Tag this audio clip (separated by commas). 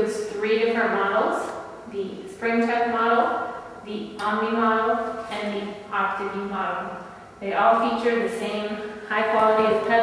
Speech